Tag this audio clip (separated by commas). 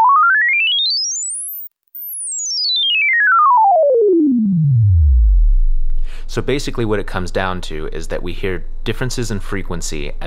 Speech